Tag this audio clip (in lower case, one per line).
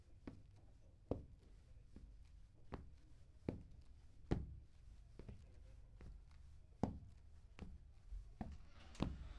footsteps